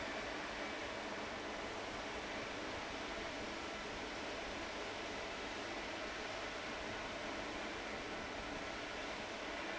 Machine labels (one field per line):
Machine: fan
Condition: abnormal